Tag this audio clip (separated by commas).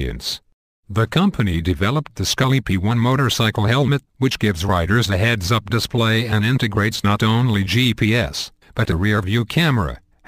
Speech